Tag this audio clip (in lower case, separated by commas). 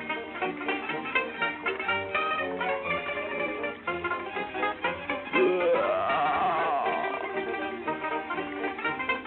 music